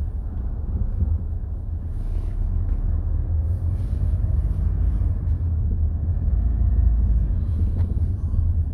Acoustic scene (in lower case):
car